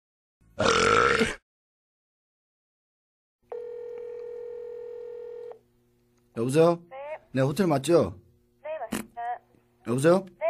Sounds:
speech

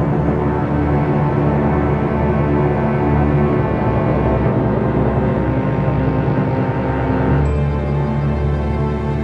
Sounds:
theme music, music

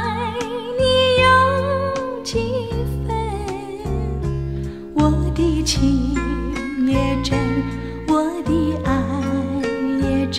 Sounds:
music, lullaby

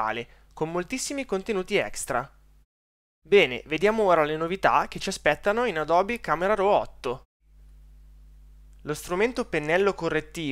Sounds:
speech

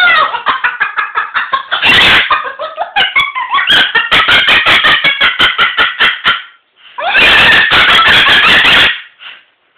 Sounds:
laughter, bird

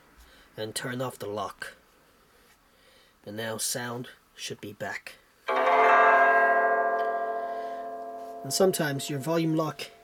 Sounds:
zither, pizzicato

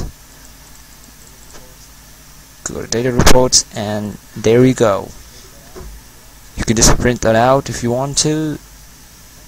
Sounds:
speech, inside a small room

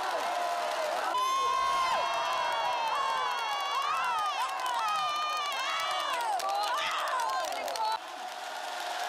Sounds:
people cheering

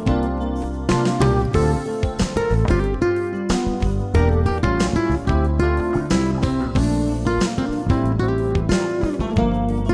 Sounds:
music

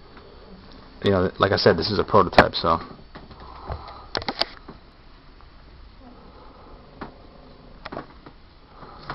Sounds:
speech, inside a small room

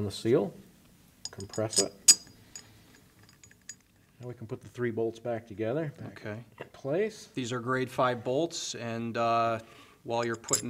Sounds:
inside a small room, speech

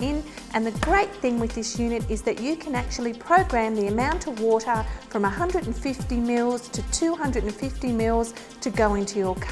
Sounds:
music, speech

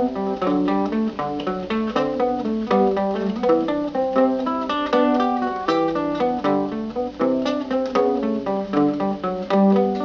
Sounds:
music, guitar, musical instrument, plucked string instrument, mandolin

